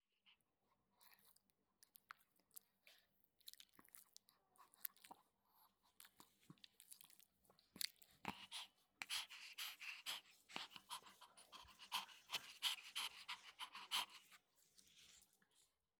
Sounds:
domestic animals
dog
animal

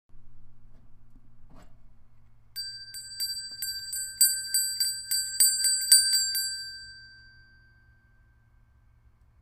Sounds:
bell

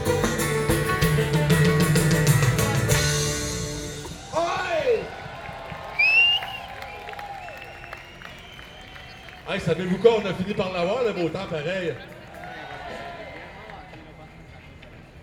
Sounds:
human group actions
cheering

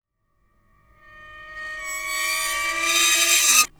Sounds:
screech

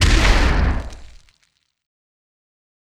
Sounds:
explosion
boom

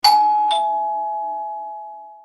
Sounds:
door
doorbell
home sounds
alarm

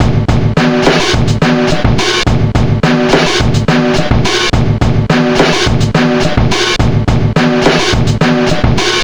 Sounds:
musical instrument
music
drum
percussion
snare drum
drum kit

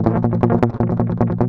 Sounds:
guitar
strum
music
musical instrument
plucked string instrument

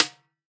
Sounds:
musical instrument
music
percussion
snare drum
drum

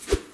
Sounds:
swoosh

